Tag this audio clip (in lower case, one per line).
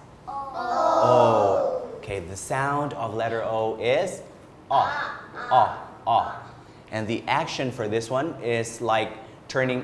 speech